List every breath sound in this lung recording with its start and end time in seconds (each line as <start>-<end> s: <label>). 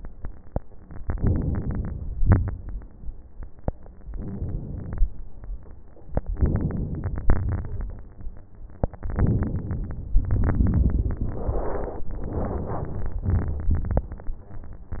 0.93-2.14 s: inhalation
0.93-2.14 s: crackles
2.17-3.19 s: crackles
2.17-3.21 s: exhalation
4.01-5.05 s: inhalation
6.19-7.24 s: inhalation
6.19-7.24 s: crackles
7.28-8.32 s: exhalation
7.28-8.32 s: crackles
9.08-10.13 s: inhalation
9.08-10.13 s: crackles
10.16-11.36 s: exhalation
10.16-11.36 s: crackles
12.09-13.28 s: inhalation
12.09-13.28 s: crackles
13.30-14.27 s: exhalation
13.30-14.27 s: crackles